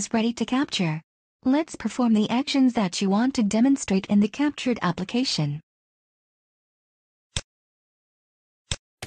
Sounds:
Speech

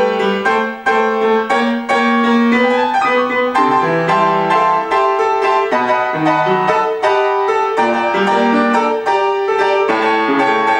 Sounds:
Music

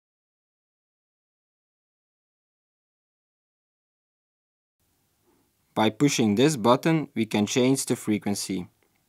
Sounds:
Speech

